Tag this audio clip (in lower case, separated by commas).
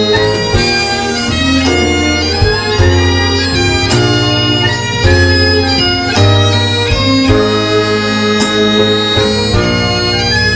bagpipes, playing bagpipes, woodwind instrument